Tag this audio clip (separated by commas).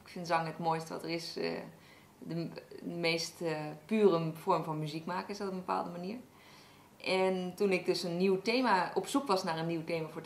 Speech